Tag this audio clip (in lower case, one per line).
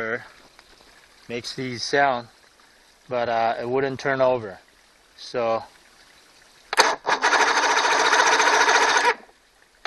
outside, urban or man-made
speech
engine